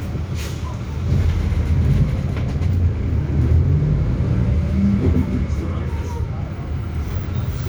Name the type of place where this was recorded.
bus